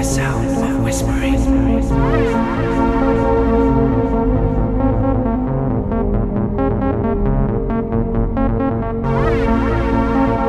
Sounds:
Speech, Music

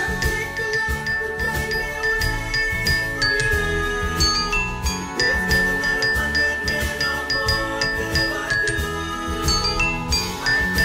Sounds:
playing glockenspiel

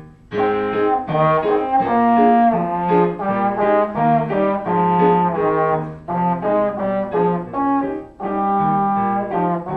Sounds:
Trombone, playing trombone, Music

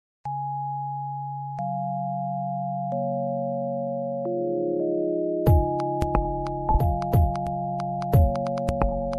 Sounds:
Music

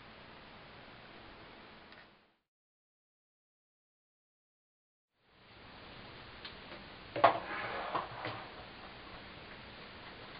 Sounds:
planing timber

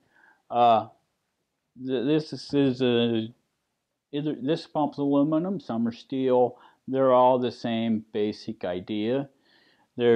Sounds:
Speech

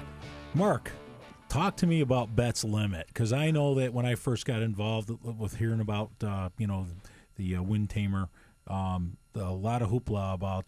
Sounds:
Speech

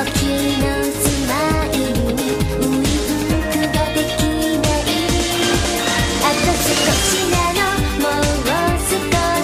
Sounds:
Exciting music, Pop music, Music

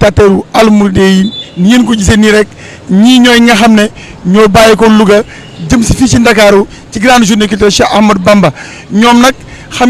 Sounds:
Speech

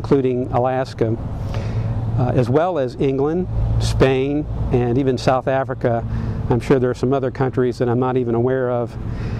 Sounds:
Speech

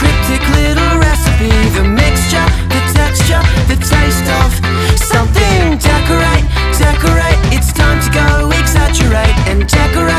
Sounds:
Music, Sound effect

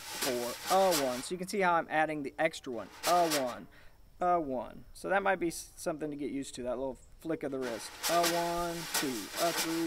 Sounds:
Speech

